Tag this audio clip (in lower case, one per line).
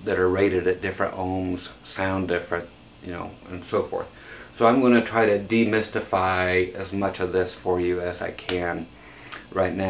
speech